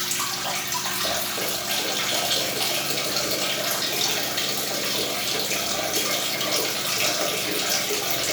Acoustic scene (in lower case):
restroom